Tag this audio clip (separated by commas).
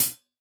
Percussion, Cymbal, Music, Musical instrument, Hi-hat